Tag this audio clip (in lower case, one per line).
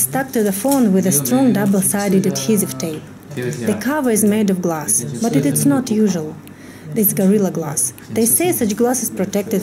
speech